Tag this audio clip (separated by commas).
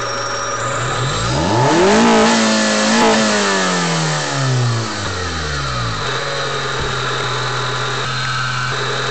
Vehicle